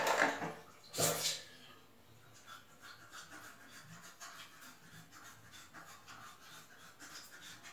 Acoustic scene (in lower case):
restroom